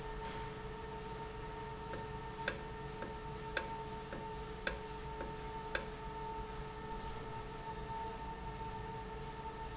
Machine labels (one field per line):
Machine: valve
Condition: normal